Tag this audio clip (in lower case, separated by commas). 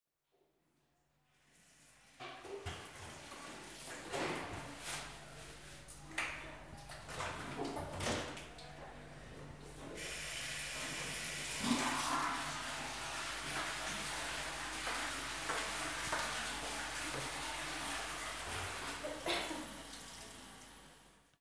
toilet flush, water, domestic sounds